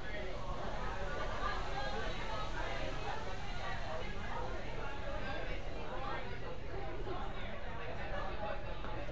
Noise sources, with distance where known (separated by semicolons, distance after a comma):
person or small group talking, near